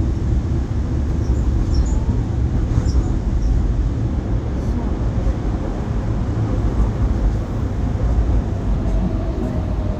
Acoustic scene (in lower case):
subway train